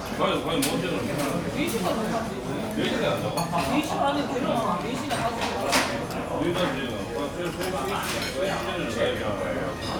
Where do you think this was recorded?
in a crowded indoor space